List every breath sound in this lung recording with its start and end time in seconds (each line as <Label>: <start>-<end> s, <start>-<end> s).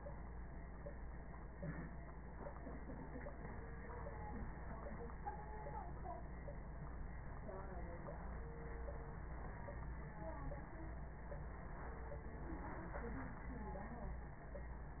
Inhalation: 1.53-2.02 s
Crackles: 1.53-2.02 s